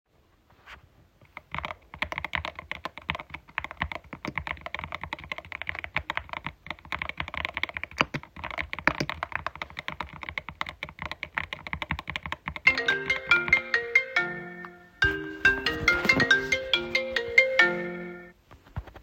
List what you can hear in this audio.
keyboard typing, phone ringing